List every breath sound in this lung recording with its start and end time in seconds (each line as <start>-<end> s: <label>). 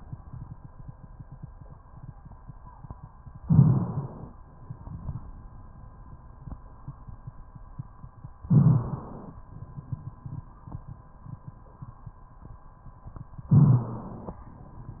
3.41-4.32 s: inhalation
3.41-4.32 s: rhonchi
8.49-9.39 s: rhonchi
8.51-9.41 s: inhalation
13.49-14.39 s: inhalation
13.49-14.39 s: rhonchi